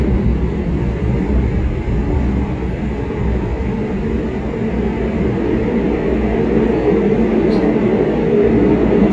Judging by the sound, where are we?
on a subway train